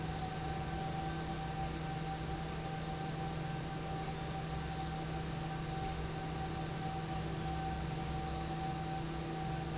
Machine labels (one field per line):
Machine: fan